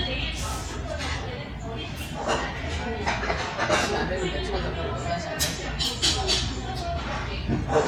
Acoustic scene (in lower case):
restaurant